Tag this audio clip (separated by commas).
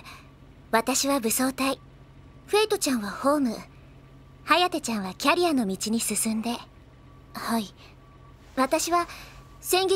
Speech